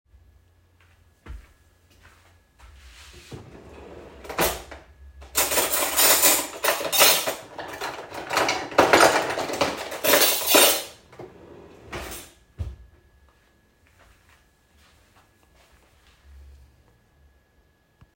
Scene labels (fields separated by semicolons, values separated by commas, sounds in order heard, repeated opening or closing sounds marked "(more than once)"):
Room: kitchen; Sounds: footsteps, wardrobe or drawer (more than once), cutlery and dishes